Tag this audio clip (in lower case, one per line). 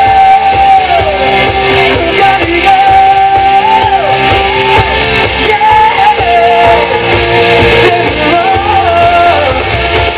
singing
shout
music